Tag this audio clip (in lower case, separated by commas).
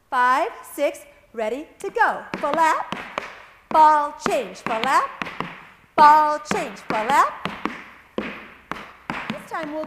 tap dancing